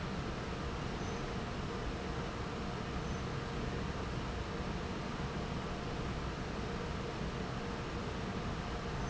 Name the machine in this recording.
fan